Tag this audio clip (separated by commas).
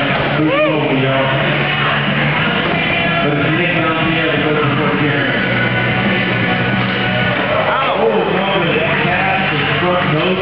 Speech, Music